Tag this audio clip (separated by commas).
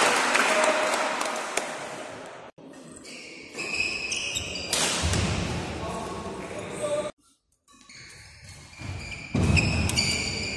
playing badminton